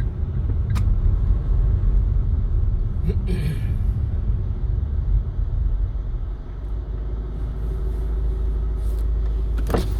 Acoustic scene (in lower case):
car